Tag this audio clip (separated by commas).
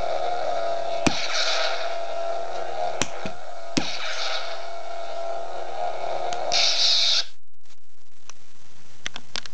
Clatter